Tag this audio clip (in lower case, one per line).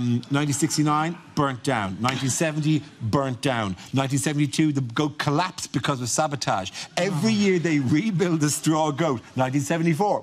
speech